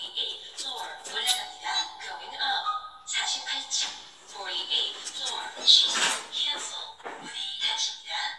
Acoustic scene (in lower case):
elevator